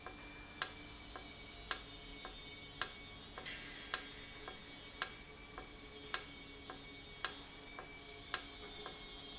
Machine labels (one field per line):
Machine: valve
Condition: normal